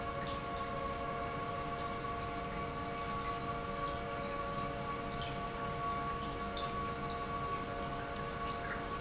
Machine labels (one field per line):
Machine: pump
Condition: normal